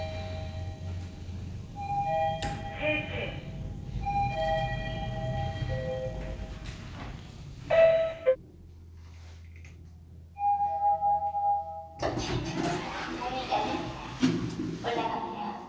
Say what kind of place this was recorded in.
elevator